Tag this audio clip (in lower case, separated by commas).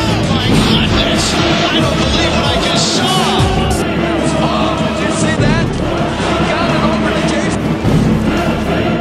music, speech